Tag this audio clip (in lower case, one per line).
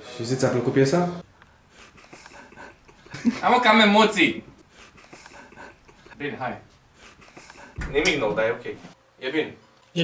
inside a small room
speech